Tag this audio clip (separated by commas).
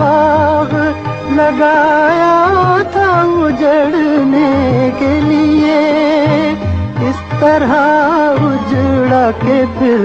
Music of Bollywood, Music, Music of Asia